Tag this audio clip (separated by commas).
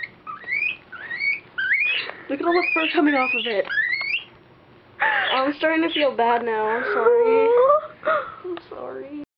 Speech